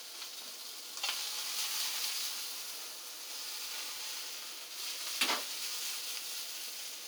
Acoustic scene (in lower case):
kitchen